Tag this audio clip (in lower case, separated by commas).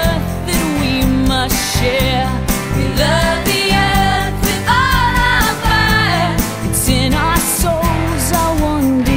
music